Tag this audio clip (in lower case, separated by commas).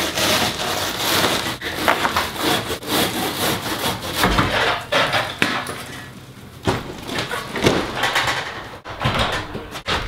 crackle